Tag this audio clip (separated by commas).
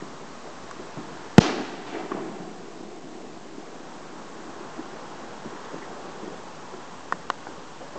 Fireworks, Explosion